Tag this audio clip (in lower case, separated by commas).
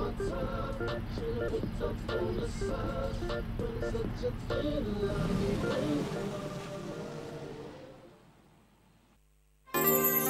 music